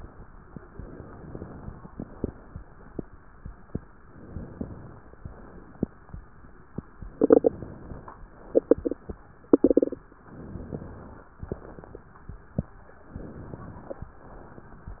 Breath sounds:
0.66-1.86 s: inhalation
1.86-2.60 s: exhalation
4.02-5.14 s: inhalation
5.14-5.85 s: exhalation
7.03-8.11 s: inhalation
8.33-9.11 s: exhalation
10.25-11.31 s: inhalation
11.41-12.36 s: exhalation
13.12-14.14 s: inhalation
14.14-15.00 s: exhalation

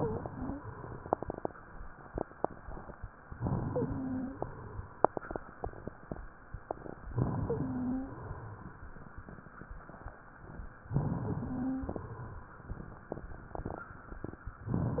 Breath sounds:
0.00-0.61 s: wheeze
3.31-4.44 s: inhalation
3.67-4.38 s: wheeze
7.03-8.21 s: inhalation
7.40-8.23 s: wheeze
10.86-11.97 s: inhalation
11.29-11.91 s: wheeze
14.69-15.00 s: inhalation
14.94-15.00 s: wheeze

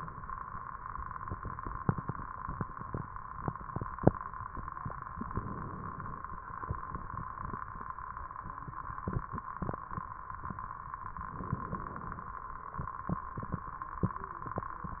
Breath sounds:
5.12-6.32 s: inhalation
11.21-12.41 s: inhalation

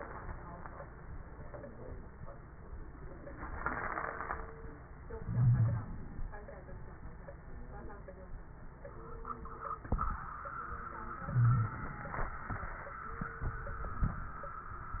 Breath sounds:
5.18-5.86 s: wheeze
5.18-6.33 s: inhalation
11.17-12.42 s: inhalation
11.35-11.80 s: wheeze

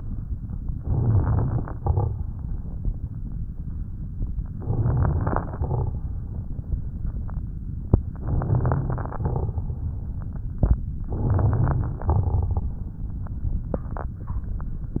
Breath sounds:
0.72-1.77 s: inhalation
0.72-1.77 s: crackles
1.77-2.22 s: exhalation
1.78-2.24 s: crackles
4.52-5.50 s: inhalation
4.52-5.50 s: crackles
5.56-6.01 s: exhalation
5.56-6.01 s: crackles
8.18-9.16 s: inhalation
8.18-9.16 s: crackles
9.24-9.70 s: exhalation
9.24-9.70 s: crackles
11.08-12.07 s: inhalation
11.08-12.07 s: crackles
12.12-12.69 s: exhalation
12.12-12.69 s: crackles

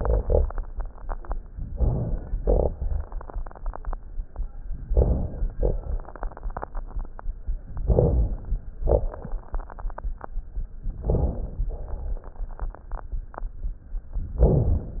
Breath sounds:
1.73-2.37 s: inhalation
2.43-2.72 s: exhalation
2.43-2.72 s: crackles
4.88-5.52 s: inhalation
5.56-5.86 s: exhalation
5.56-5.86 s: crackles
7.86-8.60 s: inhalation
8.82-9.12 s: exhalation
8.82-9.12 s: crackles
11.02-11.67 s: inhalation
11.76-12.27 s: exhalation
14.42-15.00 s: inhalation

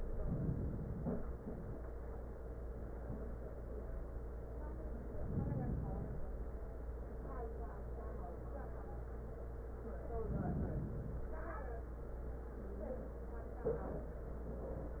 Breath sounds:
0.00-1.43 s: inhalation
5.01-6.30 s: inhalation
10.11-11.40 s: inhalation

